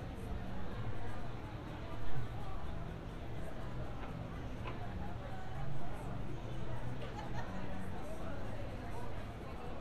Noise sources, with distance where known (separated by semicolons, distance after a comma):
large crowd, far